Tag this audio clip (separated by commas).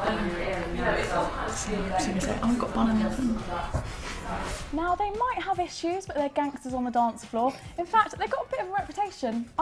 Music, Speech